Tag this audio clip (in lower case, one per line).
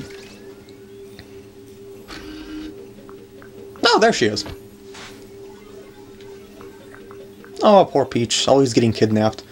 speech
sliding door